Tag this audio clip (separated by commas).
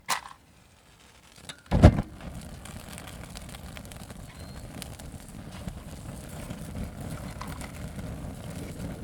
Fire